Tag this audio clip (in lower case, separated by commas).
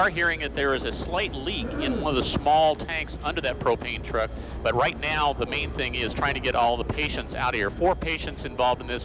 speech